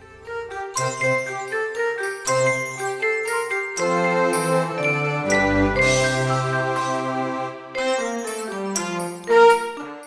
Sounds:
music

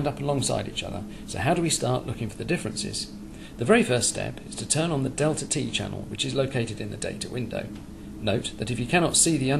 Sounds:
speech

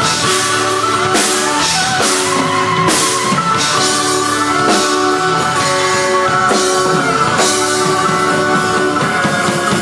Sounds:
musical instrument, plucked string instrument, guitar, music

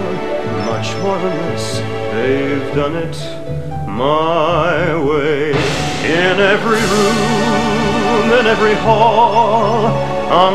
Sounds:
male singing, music

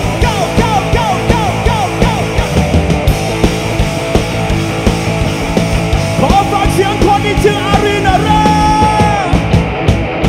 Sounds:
music

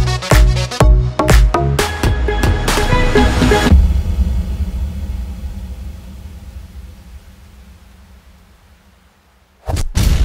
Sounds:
music

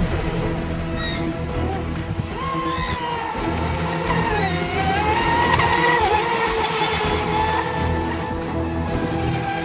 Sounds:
music, water vehicle

